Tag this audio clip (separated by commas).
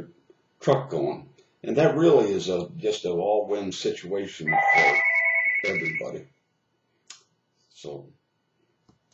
Speech